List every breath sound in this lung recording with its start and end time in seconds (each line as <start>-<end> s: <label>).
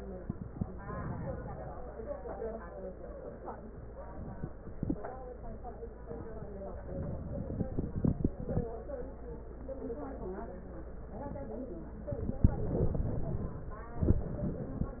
12.11-13.86 s: inhalation